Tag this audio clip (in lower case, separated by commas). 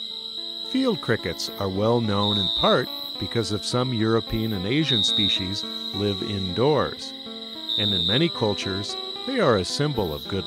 cricket chirping